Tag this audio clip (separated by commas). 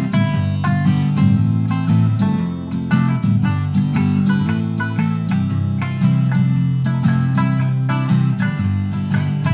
Plucked string instrument, Music, Acoustic guitar